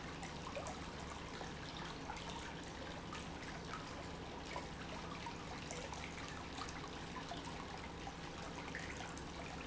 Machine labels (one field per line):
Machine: pump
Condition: normal